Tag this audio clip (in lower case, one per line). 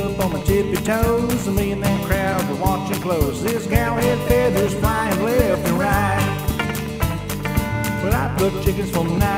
music